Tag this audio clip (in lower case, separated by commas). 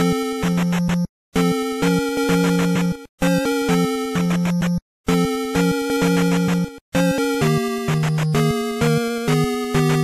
rhythm and blues, music